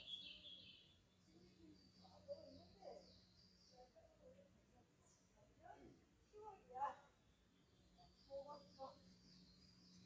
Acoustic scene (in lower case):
park